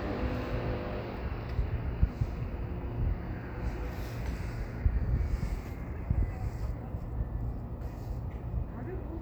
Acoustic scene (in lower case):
street